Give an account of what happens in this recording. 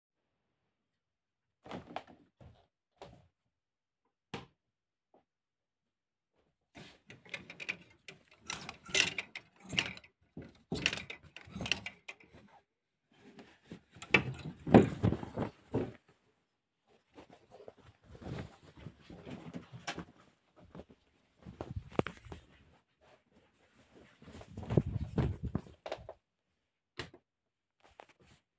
I walked into the bedroom and turned lights switch on. Then I started choosing the jacket. After I chose one, I put it on turned the lights off and walked out.